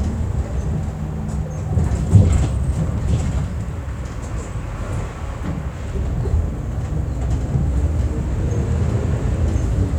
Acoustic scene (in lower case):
bus